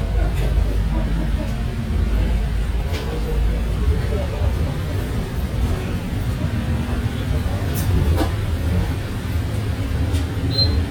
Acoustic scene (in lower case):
bus